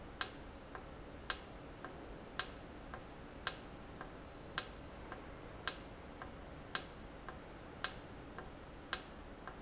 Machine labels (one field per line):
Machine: valve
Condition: normal